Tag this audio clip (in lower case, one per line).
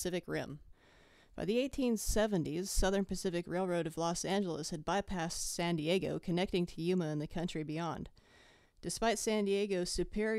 speech